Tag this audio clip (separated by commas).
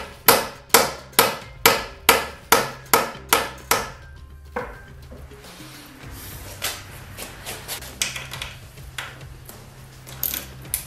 Wood